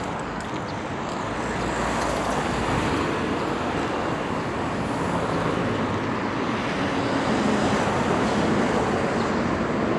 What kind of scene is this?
street